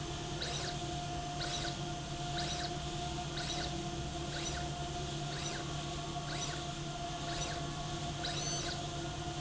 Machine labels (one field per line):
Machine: slide rail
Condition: abnormal